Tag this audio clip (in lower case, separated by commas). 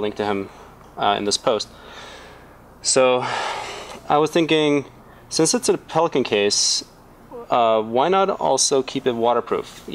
speech